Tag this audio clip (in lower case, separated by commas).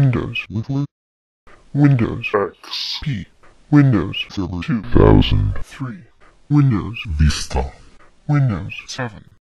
speech, speech synthesizer